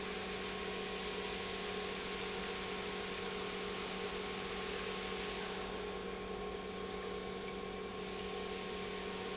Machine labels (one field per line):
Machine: pump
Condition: normal